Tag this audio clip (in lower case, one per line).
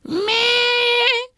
male singing
human voice
singing